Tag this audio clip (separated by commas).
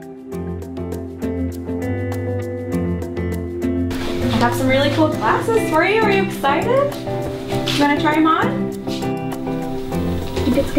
Speech, Music